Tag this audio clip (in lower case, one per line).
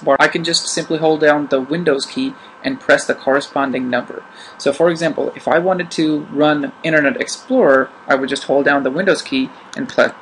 speech
monologue